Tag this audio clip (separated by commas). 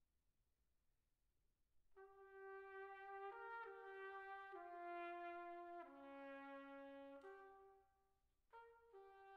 Music, Trumpet, Musical instrument